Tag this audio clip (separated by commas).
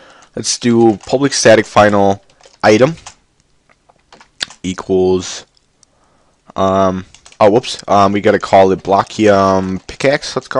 Speech